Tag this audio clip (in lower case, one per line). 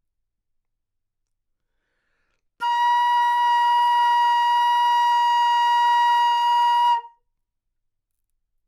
woodwind instrument
music
musical instrument